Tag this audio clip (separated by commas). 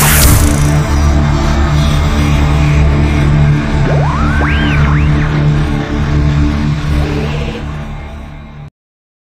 Music